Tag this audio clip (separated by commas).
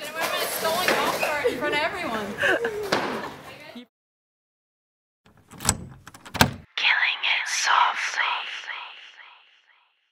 Speech, Female speech